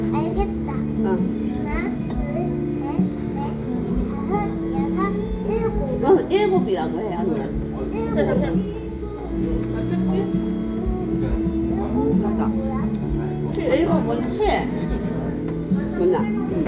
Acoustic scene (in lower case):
crowded indoor space